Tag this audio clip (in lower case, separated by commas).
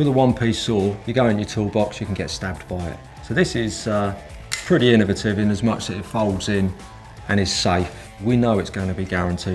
tools, speech, music